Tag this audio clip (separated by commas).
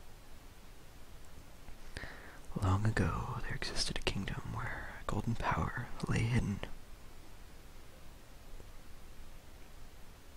Speech